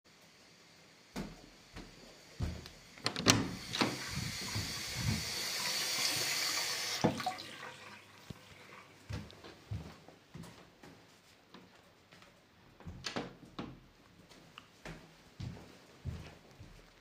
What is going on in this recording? The person opens a door and goes into the kitchen sink and turns off the water. After that the person goes back into the living room. A person in the back is typing on a keyboard.